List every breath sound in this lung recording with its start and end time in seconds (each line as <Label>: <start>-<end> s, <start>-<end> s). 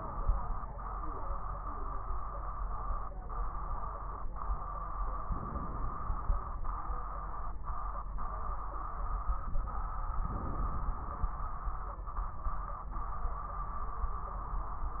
Inhalation: 5.24-6.45 s, 10.21-11.42 s